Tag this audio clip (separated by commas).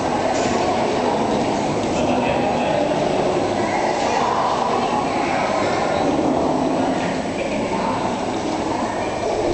Speech